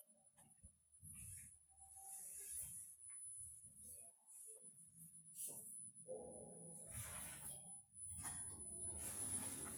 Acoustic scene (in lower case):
elevator